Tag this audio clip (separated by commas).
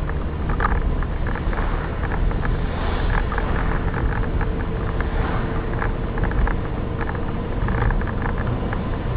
Vehicle, Car